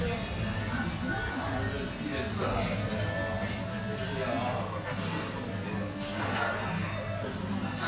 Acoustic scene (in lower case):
restaurant